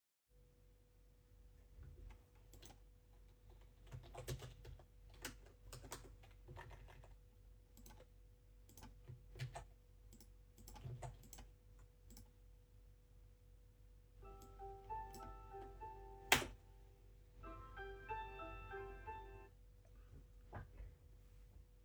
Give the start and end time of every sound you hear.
[2.29, 11.48] keyboard typing
[11.75, 12.29] keyboard typing
[14.12, 16.41] phone ringing
[14.35, 16.62] keyboard typing
[17.37, 19.59] phone ringing

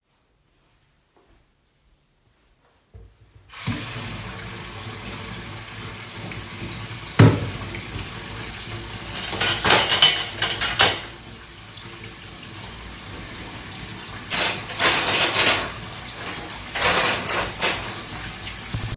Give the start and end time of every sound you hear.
[3.49, 18.96] running water
[7.17, 7.57] wardrobe or drawer
[9.12, 11.35] cutlery and dishes
[14.26, 15.81] cutlery and dishes
[16.17, 18.04] cutlery and dishes

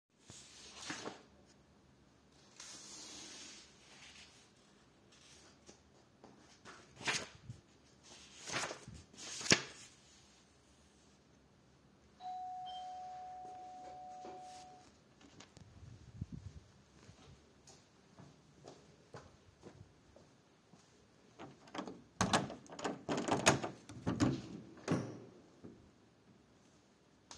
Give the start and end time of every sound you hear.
[12.19, 14.91] bell ringing
[17.57, 21.66] footsteps
[21.73, 25.31] door

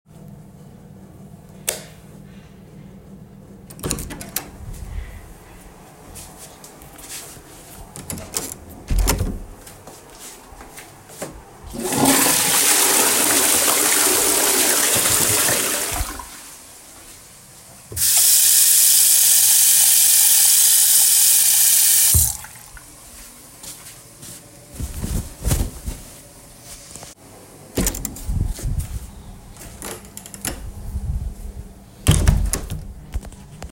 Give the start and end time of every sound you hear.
[1.16, 2.20] light switch
[3.23, 5.01] door
[5.93, 7.59] footsteps
[7.80, 9.72] door
[7.83, 9.53] footsteps
[11.16, 17.85] toilet flushing
[17.70, 23.00] running water
[23.23, 24.94] footsteps
[27.49, 29.49] door
[31.76, 33.28] door

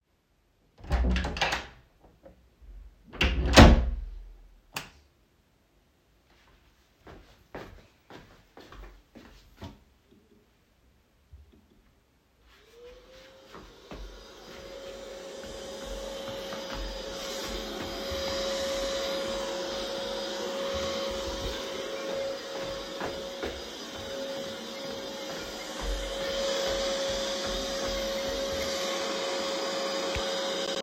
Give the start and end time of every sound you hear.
[0.73, 1.83] door
[3.03, 4.31] door
[4.69, 5.01] light switch
[6.94, 9.91] footsteps
[12.80, 30.82] vacuum cleaner
[15.32, 19.08] footsteps
[20.64, 29.08] footsteps
[21.59, 29.05] phone ringing

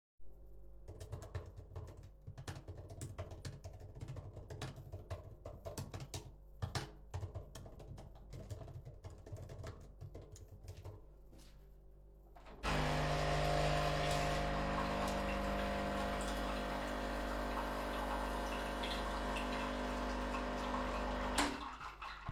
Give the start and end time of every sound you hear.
[0.93, 7.77] keyboard typing
[12.58, 21.76] coffee machine

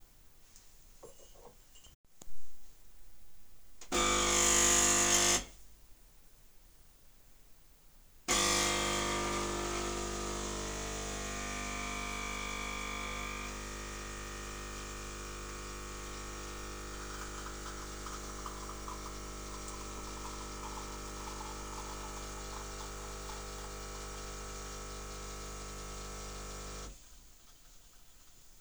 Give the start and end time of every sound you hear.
[1.02, 2.18] cutlery and dishes
[3.88, 5.48] coffee machine
[8.24, 26.95] coffee machine

